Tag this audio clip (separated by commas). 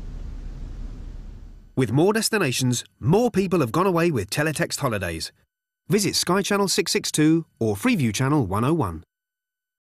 Speech